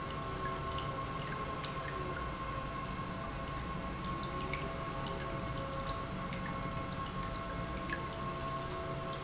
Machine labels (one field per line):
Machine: pump